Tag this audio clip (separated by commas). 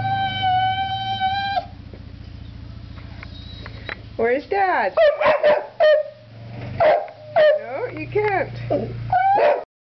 pets, Speech, Animal